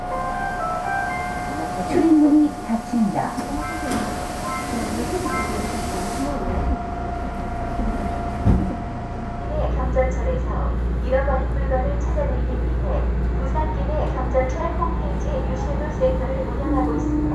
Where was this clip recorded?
on a subway train